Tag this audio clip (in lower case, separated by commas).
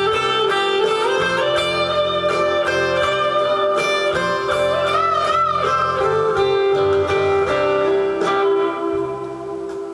guitar, musical instrument, strum, music, acoustic guitar, plucked string instrument